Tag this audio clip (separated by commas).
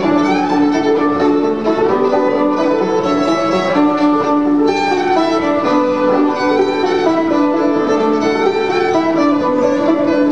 Music, Bowed string instrument, Banjo, Musical instrument, String section